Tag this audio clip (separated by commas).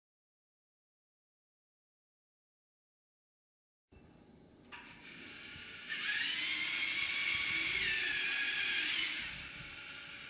Car